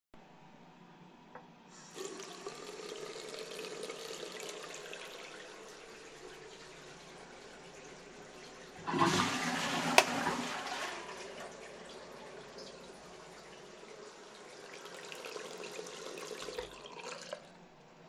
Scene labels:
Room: bathroom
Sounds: running water, toilet flushing, light switch

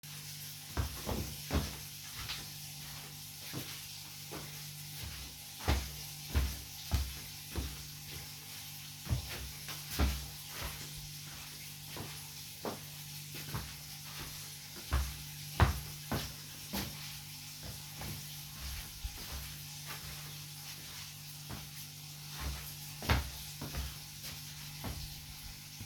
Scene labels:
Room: bedroom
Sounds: running water, footsteps

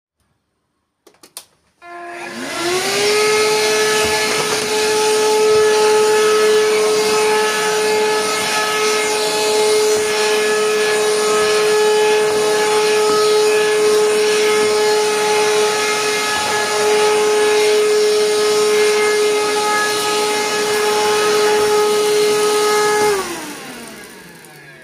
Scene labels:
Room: living room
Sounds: vacuum cleaner

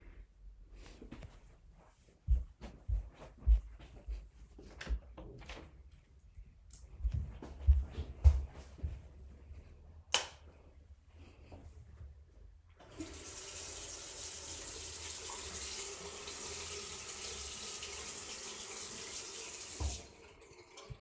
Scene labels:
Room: bathroom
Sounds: footsteps, door, light switch, running water

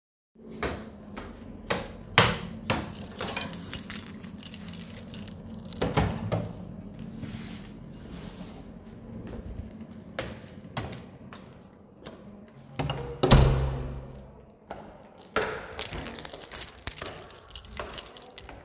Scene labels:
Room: hallway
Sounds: footsteps, keys, door (more than once)

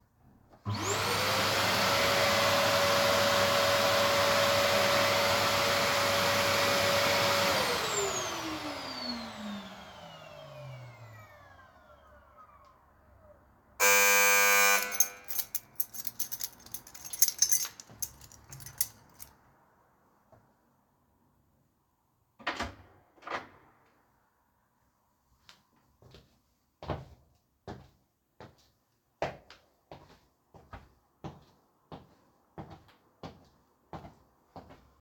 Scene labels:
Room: hallway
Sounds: vacuum cleaner, bell ringing, keys, door, footsteps

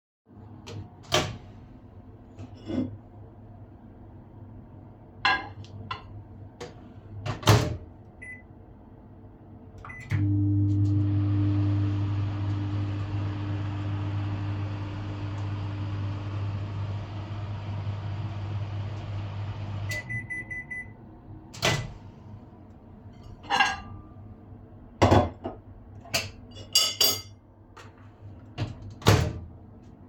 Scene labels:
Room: kitchen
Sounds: microwave, cutlery and dishes

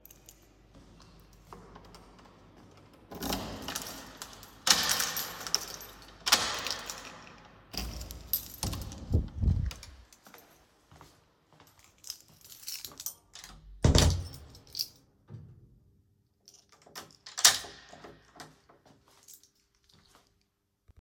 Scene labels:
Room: hallway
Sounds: keys, door (more than once), footsteps

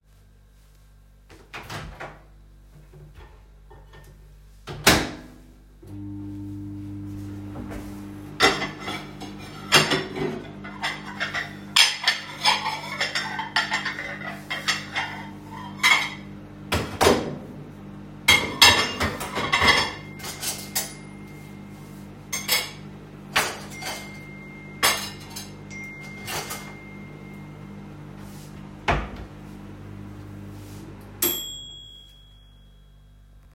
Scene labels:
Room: kitchen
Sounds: microwave, cutlery and dishes, phone ringing

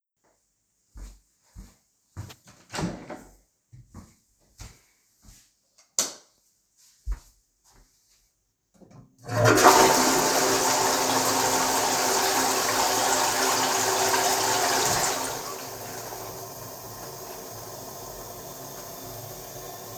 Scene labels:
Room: hallway, lavatory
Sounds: footsteps, door, light switch, toilet flushing

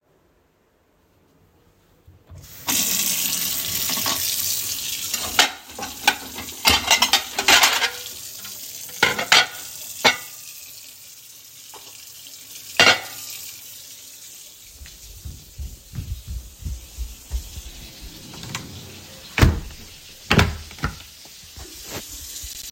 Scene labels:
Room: kitchen, bedroom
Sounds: running water, cutlery and dishes, footsteps, door, wardrobe or drawer

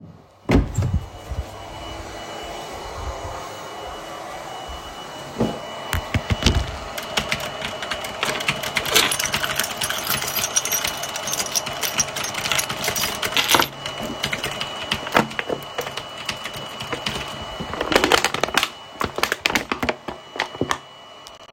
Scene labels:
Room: office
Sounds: vacuum cleaner, door, keyboard typing, keys

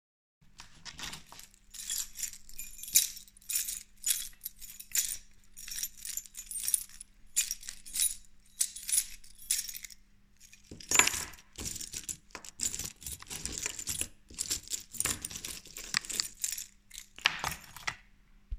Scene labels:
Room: living room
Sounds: keys

